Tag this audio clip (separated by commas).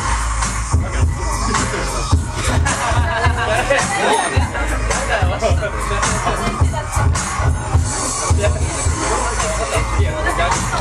Music, Speech